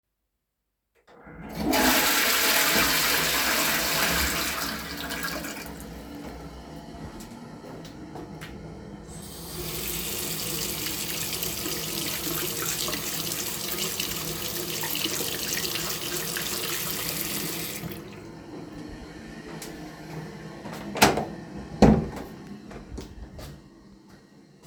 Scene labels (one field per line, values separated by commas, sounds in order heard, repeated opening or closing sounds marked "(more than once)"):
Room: lavatory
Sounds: toilet flushing, running water, door